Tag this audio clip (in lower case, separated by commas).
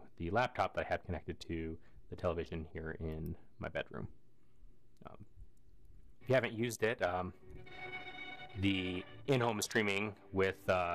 speech, music